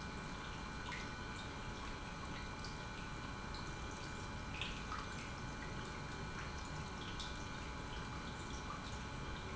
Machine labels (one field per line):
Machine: pump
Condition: normal